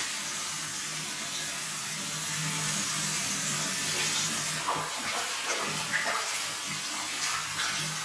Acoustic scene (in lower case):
restroom